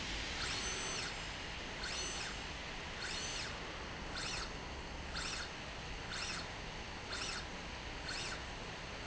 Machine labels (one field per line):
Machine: slide rail